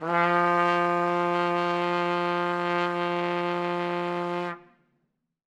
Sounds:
brass instrument
music
musical instrument
trumpet

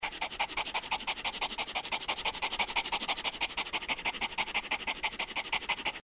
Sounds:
dog
pets
animal

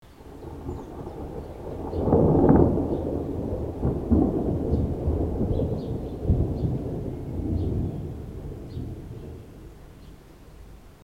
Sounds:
water
rain
thunderstorm
thunder

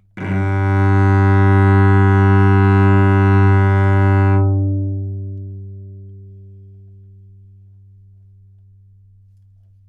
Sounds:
musical instrument
music
bowed string instrument

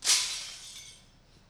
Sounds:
glass
shatter

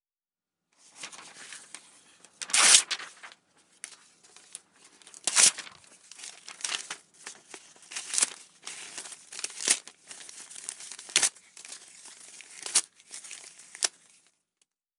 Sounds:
tearing

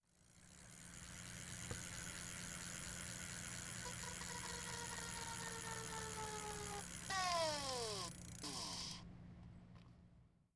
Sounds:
bicycle
vehicle

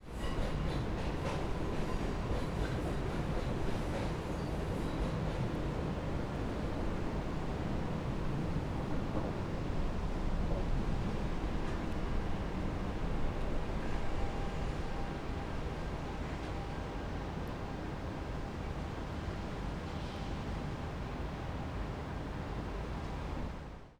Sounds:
train
vehicle
rail transport

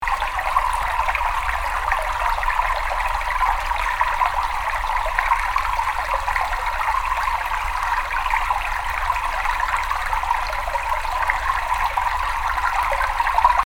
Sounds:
water
stream

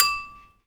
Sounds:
glass

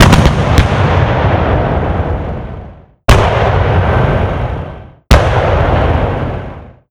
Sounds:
explosion
gunfire

